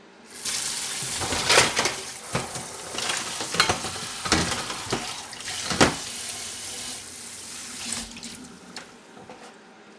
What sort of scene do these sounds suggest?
kitchen